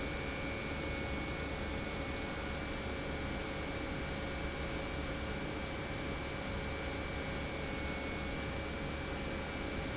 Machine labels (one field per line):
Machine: pump